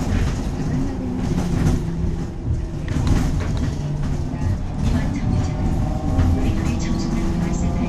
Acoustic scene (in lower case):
bus